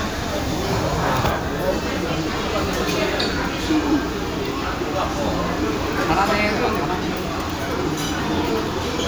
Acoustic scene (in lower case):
crowded indoor space